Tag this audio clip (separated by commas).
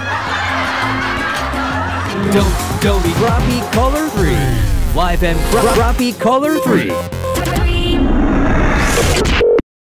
Speech, Music